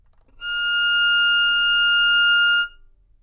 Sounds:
music, musical instrument, bowed string instrument

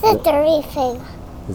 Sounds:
human voice, speech, child speech

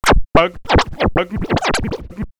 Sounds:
scratching (performance technique), musical instrument, music

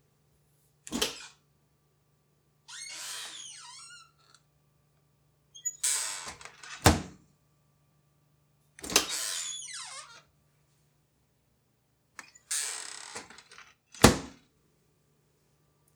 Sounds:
home sounds, microwave oven

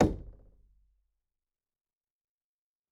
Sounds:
home sounds, door, wood, knock

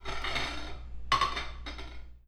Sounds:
dishes, pots and pans, cutlery, home sounds

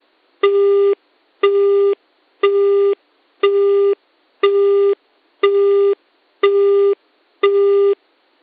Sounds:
alarm, telephone

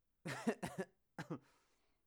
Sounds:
laughter, human voice

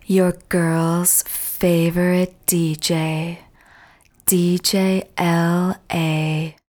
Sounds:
speech, female speech, human voice

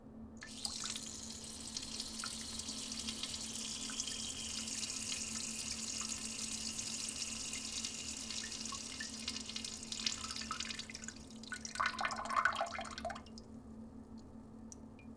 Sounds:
liquid

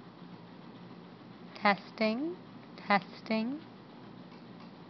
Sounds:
speech, human voice

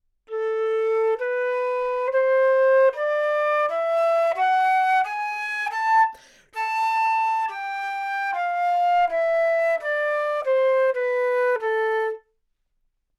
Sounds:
music, musical instrument, woodwind instrument

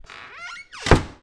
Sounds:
home sounds, door, squeak, wood, slam

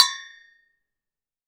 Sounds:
music, musical instrument, percussion

